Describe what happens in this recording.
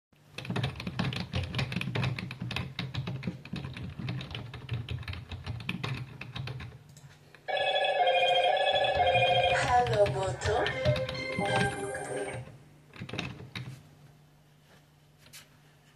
I typed on my keyboard when my phone alarm went off, which I quickly stopped and continued typing.